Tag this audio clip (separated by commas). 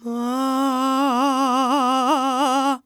Human voice, Singing, Male singing